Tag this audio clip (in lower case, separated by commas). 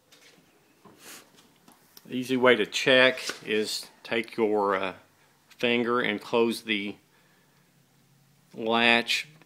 speech